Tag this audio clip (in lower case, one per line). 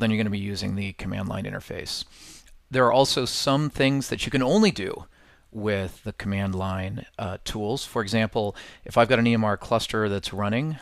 speech